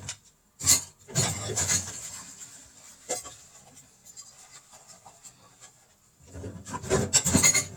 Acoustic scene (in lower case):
kitchen